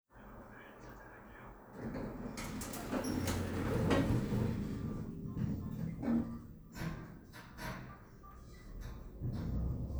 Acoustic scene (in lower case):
elevator